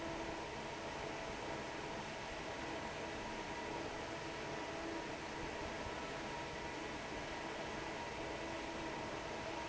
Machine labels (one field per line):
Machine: fan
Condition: normal